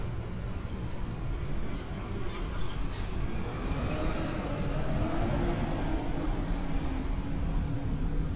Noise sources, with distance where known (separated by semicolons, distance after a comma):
large-sounding engine, far